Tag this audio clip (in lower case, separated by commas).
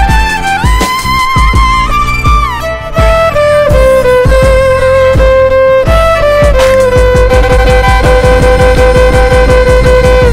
violin, bowed string instrument